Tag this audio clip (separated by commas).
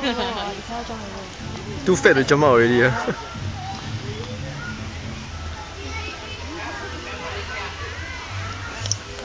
Speech